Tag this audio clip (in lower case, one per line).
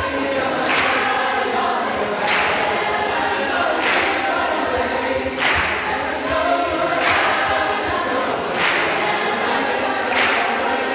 singing choir